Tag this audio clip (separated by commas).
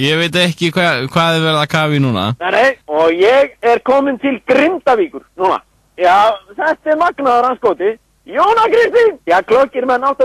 Speech